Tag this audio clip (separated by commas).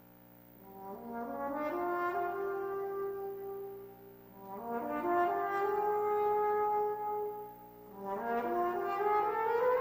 playing french horn